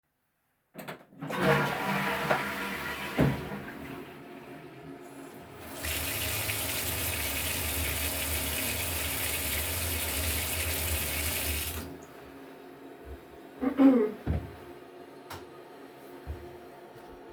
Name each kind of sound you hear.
toilet flushing, running water, light switch